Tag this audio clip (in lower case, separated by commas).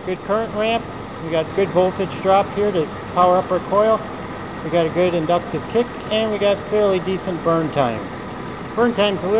speech